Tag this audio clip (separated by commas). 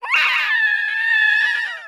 Screaming, Human voice